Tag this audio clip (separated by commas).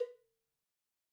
Cowbell, Bell